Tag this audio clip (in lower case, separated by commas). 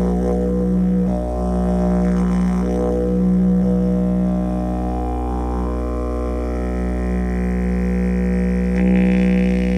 music, didgeridoo